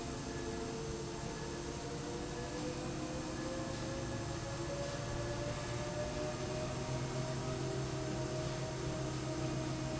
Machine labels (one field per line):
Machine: slide rail